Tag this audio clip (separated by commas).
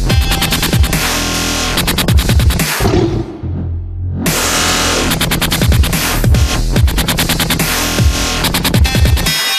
Electronic music, Dubstep, Music